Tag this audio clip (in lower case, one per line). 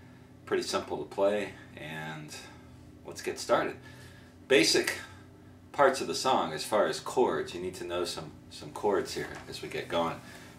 speech